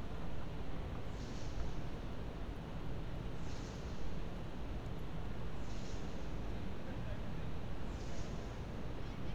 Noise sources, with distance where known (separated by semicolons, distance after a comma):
non-machinery impact